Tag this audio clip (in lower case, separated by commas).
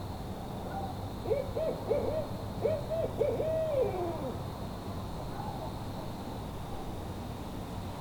wild animals, animal, bird, dog, domestic animals